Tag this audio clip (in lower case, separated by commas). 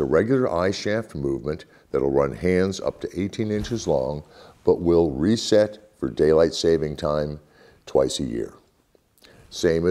speech